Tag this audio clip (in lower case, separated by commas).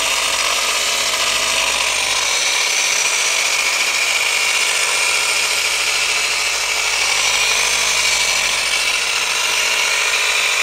tools